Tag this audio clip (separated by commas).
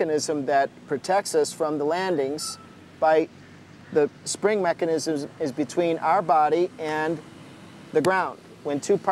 Speech